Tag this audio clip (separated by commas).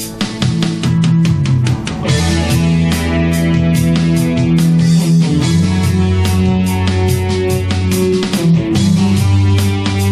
Guitar, Musical instrument, Music, Plucked string instrument, Electric guitar, Strum